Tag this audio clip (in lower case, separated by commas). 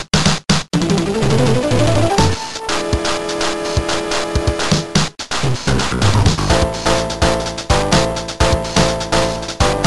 exciting music, music